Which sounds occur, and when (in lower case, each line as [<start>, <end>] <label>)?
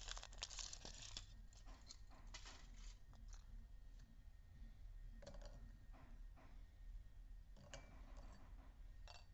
[0.00, 1.30] tearing
[0.00, 9.33] mechanisms
[1.56, 1.95] generic impact sounds
[2.08, 2.25] tap
[2.30, 2.50] generic impact sounds
[2.31, 2.96] tearing
[3.07, 3.40] generic impact sounds
[3.95, 4.00] tick
[4.51, 4.88] generic impact sounds
[5.14, 5.57] generic impact sounds
[5.91, 6.15] tap
[6.37, 6.59] tap
[7.64, 7.98] dishes, pots and pans
[8.14, 8.39] dishes, pots and pans
[8.99, 9.28] dishes, pots and pans